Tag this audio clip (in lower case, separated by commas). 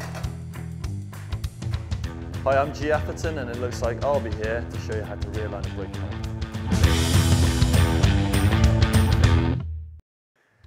speech, music